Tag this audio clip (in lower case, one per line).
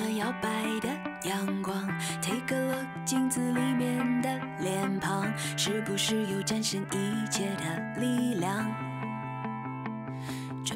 music